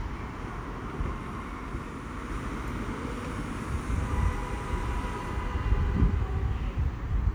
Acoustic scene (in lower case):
street